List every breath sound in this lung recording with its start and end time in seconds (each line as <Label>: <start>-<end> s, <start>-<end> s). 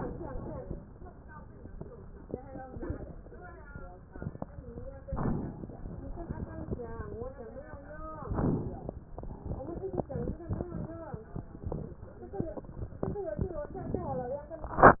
Inhalation: 5.07-5.73 s, 8.27-9.07 s, 13.72-14.50 s
Crackles: 5.07-5.73 s, 8.27-9.07 s, 13.72-14.50 s